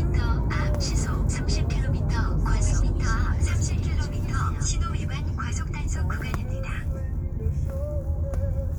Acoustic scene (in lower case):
car